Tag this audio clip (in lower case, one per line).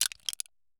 crushing